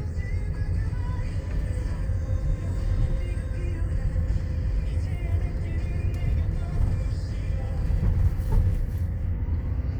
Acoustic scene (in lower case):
car